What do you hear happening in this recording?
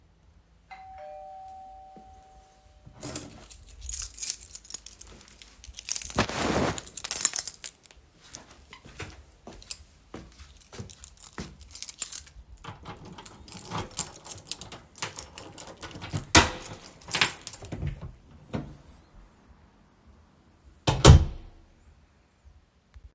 The doorbell rang and I picked up my keys. I then walked to the door and opened it.